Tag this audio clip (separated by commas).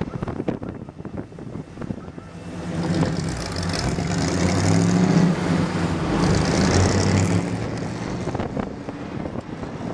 Car, Vehicle